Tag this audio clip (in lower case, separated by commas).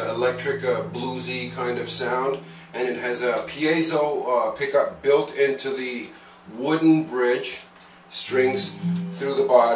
speech, music